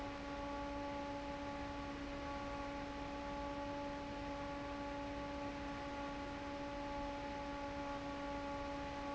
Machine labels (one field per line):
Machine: fan